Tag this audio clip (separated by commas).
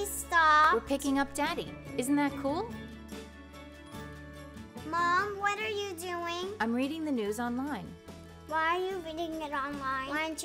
Speech, Music